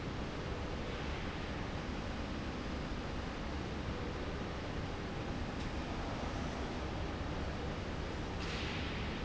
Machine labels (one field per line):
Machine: slide rail